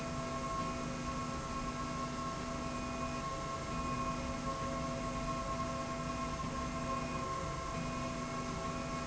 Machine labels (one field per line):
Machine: slide rail